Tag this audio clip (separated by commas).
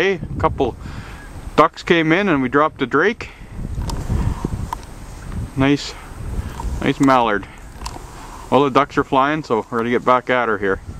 Speech